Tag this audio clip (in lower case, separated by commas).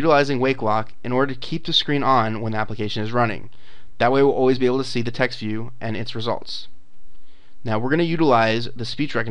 speech, male speech, monologue